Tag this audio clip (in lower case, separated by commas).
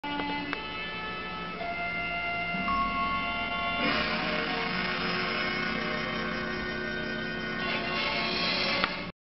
telephone, music